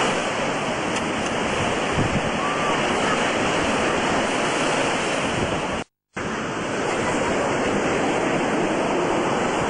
Waves and wind, children playing in the background